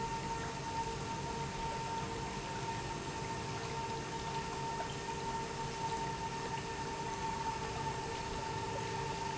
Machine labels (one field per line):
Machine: pump